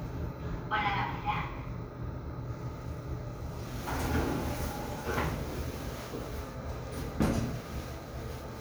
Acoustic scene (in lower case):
elevator